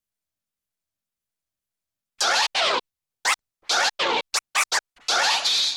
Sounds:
Music, Scratching (performance technique), Musical instrument

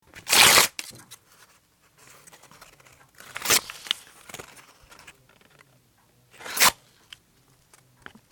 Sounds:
Tearing

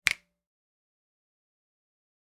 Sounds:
Finger snapping, Hands

